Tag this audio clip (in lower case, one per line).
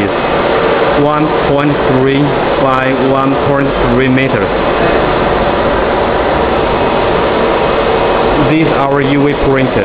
printer
speech